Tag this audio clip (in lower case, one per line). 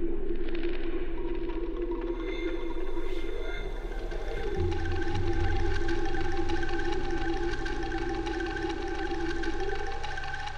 bird